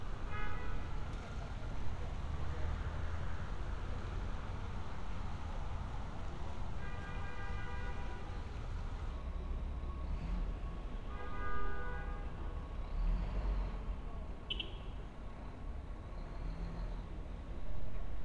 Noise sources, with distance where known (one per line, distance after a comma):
car horn